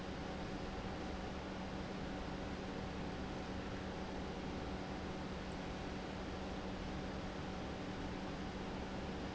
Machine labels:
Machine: pump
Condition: normal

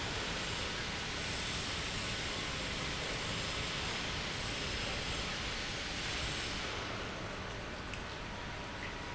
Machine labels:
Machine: pump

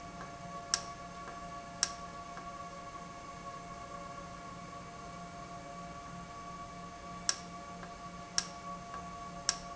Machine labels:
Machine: valve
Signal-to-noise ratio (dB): 0 dB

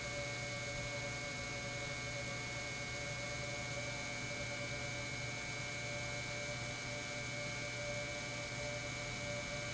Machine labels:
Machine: pump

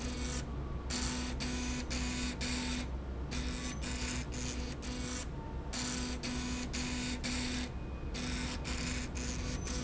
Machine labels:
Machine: slide rail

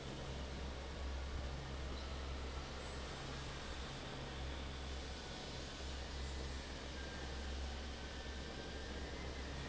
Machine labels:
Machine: fan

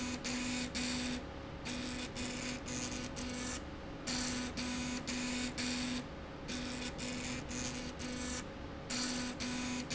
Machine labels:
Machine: slide rail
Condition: abnormal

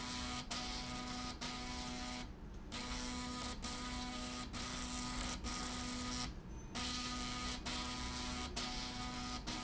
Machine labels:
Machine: slide rail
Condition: abnormal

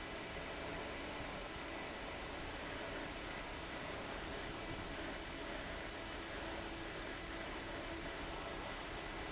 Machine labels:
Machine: fan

